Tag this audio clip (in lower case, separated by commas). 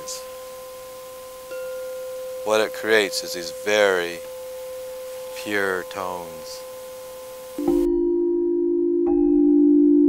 speech, chime, music